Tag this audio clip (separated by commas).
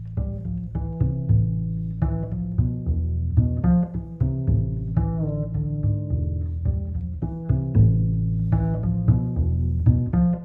Music